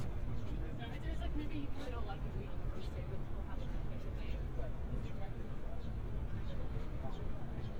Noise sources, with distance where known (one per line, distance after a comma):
person or small group talking, near